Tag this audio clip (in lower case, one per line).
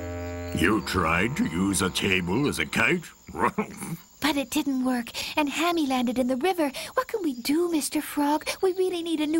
speech